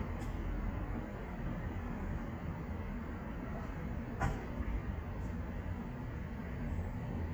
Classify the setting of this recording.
street